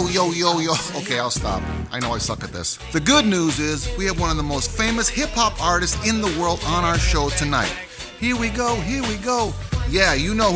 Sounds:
Speech, Music, Drum, Drum kit, Musical instrument

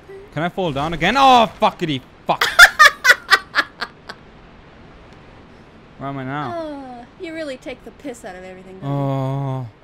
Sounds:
Speech

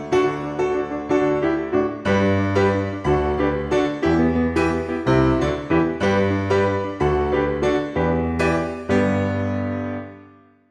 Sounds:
Music

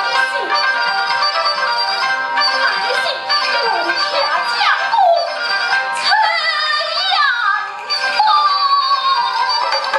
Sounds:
Speech, Music

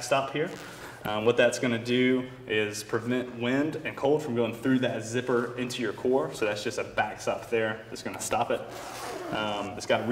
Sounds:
Speech

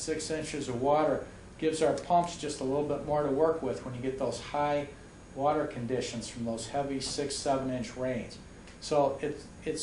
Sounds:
Speech

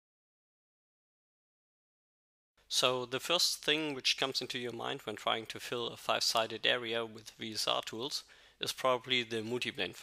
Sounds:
Speech

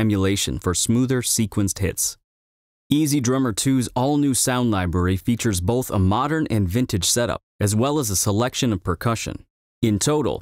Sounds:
Speech

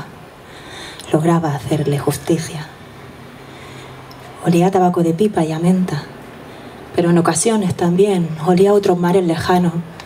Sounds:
Speech

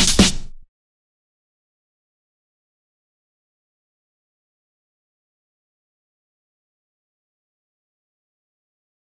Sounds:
Music

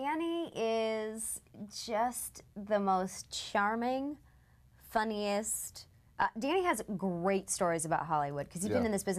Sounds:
Speech

